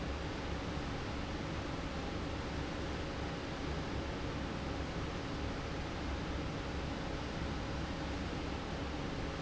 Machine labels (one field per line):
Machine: fan